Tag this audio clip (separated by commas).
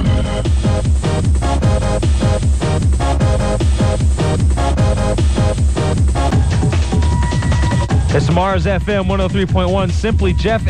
Electronic music, Speech, Techno, Music